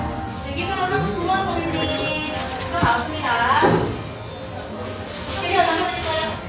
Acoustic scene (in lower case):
cafe